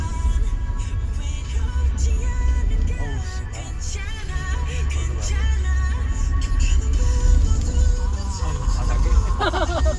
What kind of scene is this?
car